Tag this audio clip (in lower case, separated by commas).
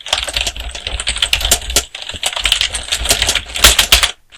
typing, computer keyboard, domestic sounds